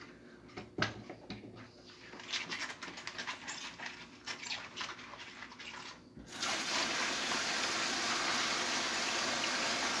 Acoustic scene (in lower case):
kitchen